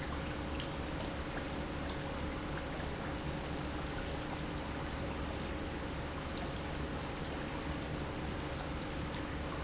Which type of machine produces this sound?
pump